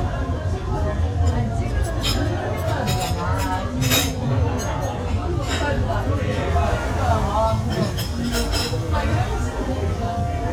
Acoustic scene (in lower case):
restaurant